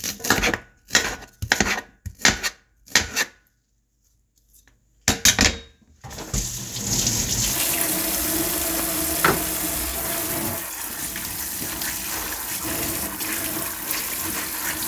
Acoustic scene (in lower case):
kitchen